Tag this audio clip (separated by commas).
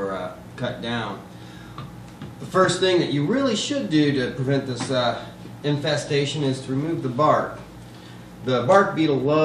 Speech